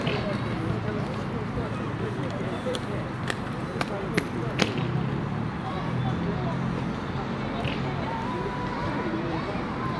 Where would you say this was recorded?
in a residential area